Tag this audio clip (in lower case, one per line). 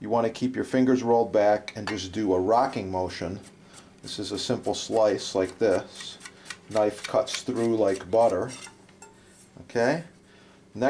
speech